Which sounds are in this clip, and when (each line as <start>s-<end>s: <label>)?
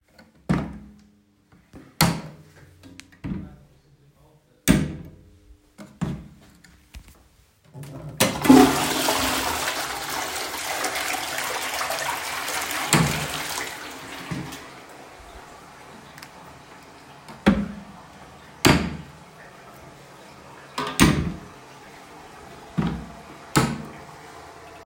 0.3s-1.0s: wardrobe or drawer
1.8s-3.6s: wardrobe or drawer
4.5s-5.1s: wardrobe or drawer
5.8s-6.4s: wardrobe or drawer
8.1s-14.8s: toilet flushing
17.2s-19.2s: wardrobe or drawer
20.8s-21.4s: wardrobe or drawer
22.6s-24.6s: wardrobe or drawer